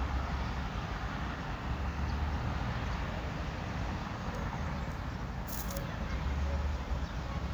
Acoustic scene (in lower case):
residential area